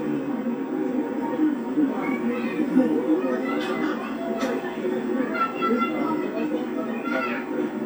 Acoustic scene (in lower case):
park